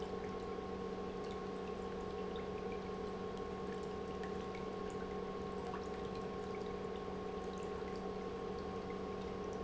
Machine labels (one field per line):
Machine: pump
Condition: normal